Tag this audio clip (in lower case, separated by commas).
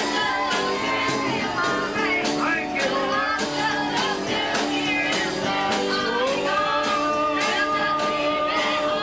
male singing, female singing, choir, music